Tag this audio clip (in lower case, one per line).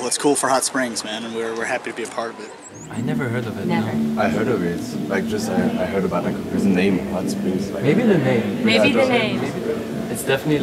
speech